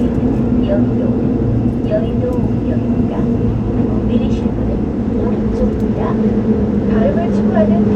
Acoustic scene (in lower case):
subway train